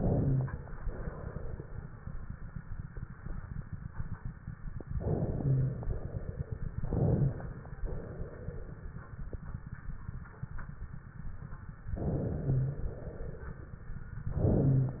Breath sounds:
Inhalation: 0.00-0.72 s, 4.97-5.91 s, 6.85-7.78 s, 11.92-12.83 s, 14.32-15.00 s
Exhalation: 0.78-4.86 s, 5.91-6.78 s, 7.86-9.27 s, 12.83-14.27 s

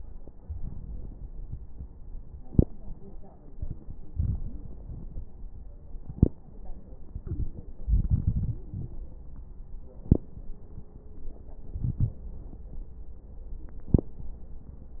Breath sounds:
Inhalation: 0.35-1.62 s, 3.59-5.40 s, 7.10-8.96 s, 11.53-12.97 s
Exhalation: 2.33-3.51 s, 5.97-7.06 s, 9.88-11.53 s, 13.60-15.00 s
Crackles: 0.35-1.62 s, 2.33-3.51 s, 3.59-5.40 s, 5.97-7.06 s, 7.10-8.96 s, 9.88-11.47 s, 11.53-12.97 s, 13.60-15.00 s

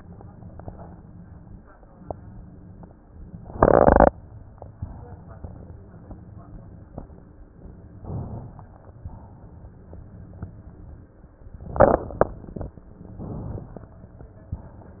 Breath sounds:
Inhalation: 4.72-5.71 s, 7.98-9.06 s, 13.17-14.03 s
Exhalation: 9.06-10.05 s

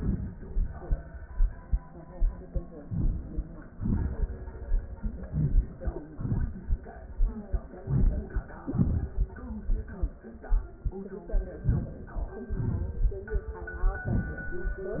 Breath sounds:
Inhalation: 2.80-3.72 s, 5.31-6.13 s, 7.79-8.60 s, 11.61-12.46 s
Exhalation: 3.72-4.36 s, 6.12-6.88 s, 8.58-9.61 s, 12.44-13.49 s
Crackles: 5.31-6.13 s, 7.76-8.57 s, 8.58-9.61 s

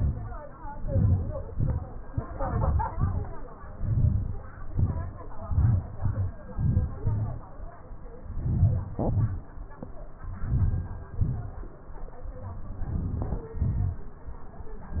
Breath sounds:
Inhalation: 0.90-1.36 s, 2.36-2.87 s, 3.80-4.37 s, 5.51-5.88 s, 6.58-6.95 s, 8.43-8.92 s, 10.45-11.07 s, 12.94-13.44 s
Exhalation: 1.52-1.94 s, 2.98-3.38 s, 4.78-5.30 s, 6.04-6.33 s, 7.00-7.48 s, 9.08-9.47 s, 11.20-11.67 s, 13.62-14.03 s

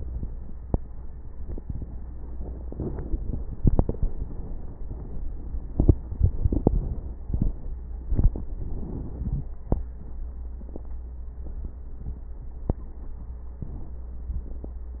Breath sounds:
Inhalation: 2.06-3.58 s, 5.56-6.09 s, 7.23-8.06 s, 13.58-14.11 s
Exhalation: 3.57-5.54 s, 6.11-7.20 s, 8.05-9.53 s
Wheeze: 9.29-9.53 s
Crackles: 2.06-3.58 s, 3.59-5.54 s, 5.56-6.09 s, 6.11-7.20 s, 7.23-8.06 s, 13.58-14.11 s

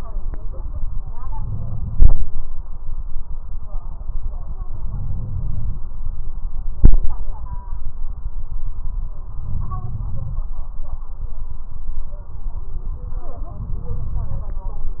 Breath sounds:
Inhalation: 1.16-2.37 s, 4.77-5.82 s, 9.38-10.43 s, 13.46-14.51 s
Crackles: 1.16-2.37 s, 4.77-5.82 s, 9.38-10.43 s, 13.46-14.51 s

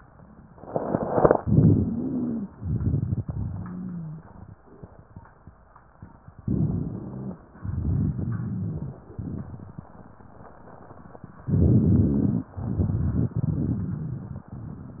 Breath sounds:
Inhalation: 1.37-2.47 s, 6.42-7.37 s, 11.48-12.49 s
Exhalation: 2.57-4.56 s, 7.59-9.90 s, 12.55-15.00 s
Wheeze: 1.57-2.47 s, 3.47-4.22 s, 6.51-7.33 s
Rhonchi: 11.45-12.48 s
Crackles: 2.56-3.46 s, 7.60-9.85 s, 12.58-14.44 s

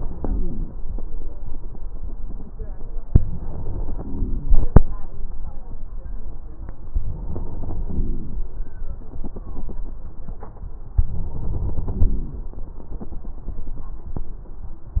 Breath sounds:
Inhalation: 0.00-0.72 s, 3.21-4.54 s, 6.91-8.35 s, 11.04-12.48 s
Wheeze: 0.00-0.72 s
Crackles: 11.04-12.48 s

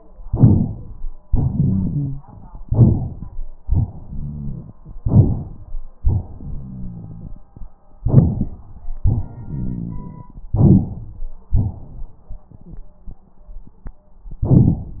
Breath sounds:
Inhalation: 0.25-1.10 s, 2.63-3.57 s, 5.04-5.86 s, 8.04-8.92 s, 10.52-11.29 s
Exhalation: 1.27-2.24 s, 3.71-4.73 s, 6.03-7.74 s, 9.02-10.49 s, 11.53-12.16 s
Wheeze: 1.57-2.26 s
Rhonchi: 0.25-1.10 s, 2.61-3.63 s, 3.71-4.73 s, 5.04-5.86 s, 6.03-7.74 s, 8.04-8.92 s, 9.02-10.49 s, 10.52-11.29 s, 11.53-12.16 s

